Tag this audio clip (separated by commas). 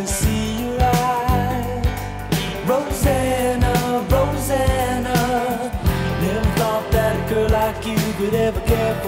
Rock and roll